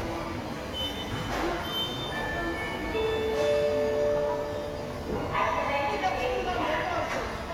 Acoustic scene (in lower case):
subway station